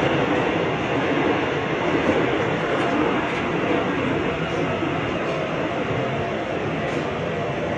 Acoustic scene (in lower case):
subway train